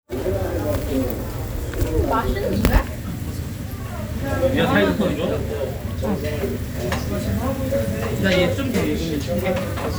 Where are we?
in a restaurant